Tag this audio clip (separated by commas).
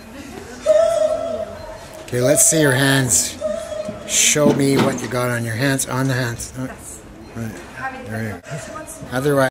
Speech